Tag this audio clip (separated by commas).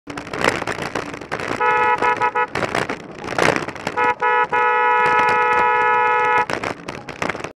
Bicycle